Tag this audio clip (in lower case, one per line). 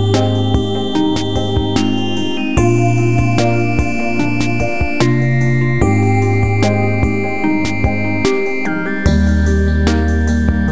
music